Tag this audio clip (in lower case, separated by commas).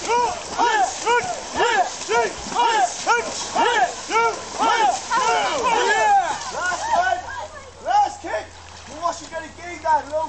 stream, speech, gurgling